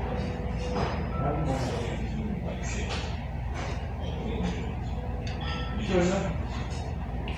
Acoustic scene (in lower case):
restaurant